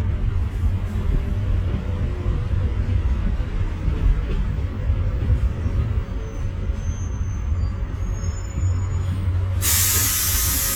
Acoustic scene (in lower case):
bus